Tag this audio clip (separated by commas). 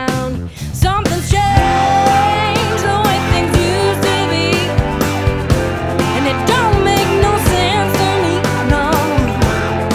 Music